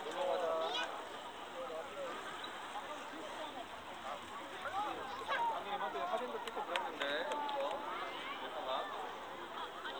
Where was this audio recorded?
in a park